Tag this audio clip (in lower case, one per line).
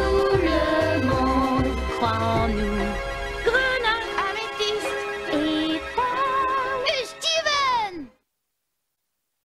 speech
music